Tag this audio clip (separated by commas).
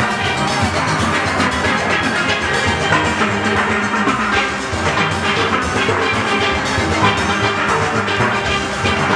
playing steelpan